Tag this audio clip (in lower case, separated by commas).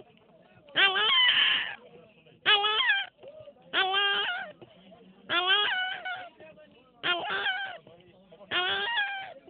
speech, whimper